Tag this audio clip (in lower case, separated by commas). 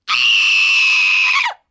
screaming, human voice